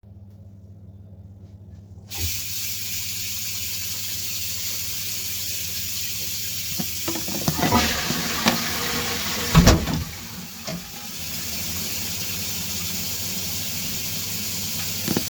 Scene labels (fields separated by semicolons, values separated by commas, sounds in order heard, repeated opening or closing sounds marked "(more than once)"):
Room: bathroom; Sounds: running water, toilet flushing, door